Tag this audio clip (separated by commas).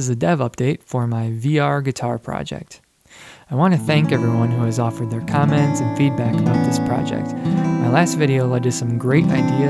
Musical instrument, Music, Speech